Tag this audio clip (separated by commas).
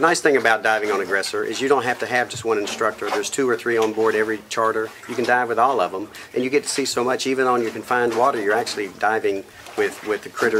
Speech